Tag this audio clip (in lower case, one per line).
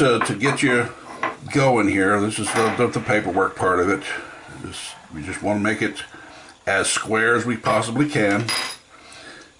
speech